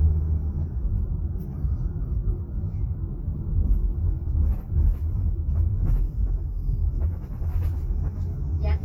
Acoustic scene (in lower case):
car